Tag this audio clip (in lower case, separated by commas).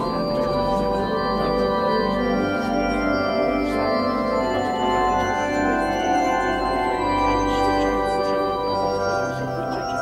music, musical instrument, keyboard (musical)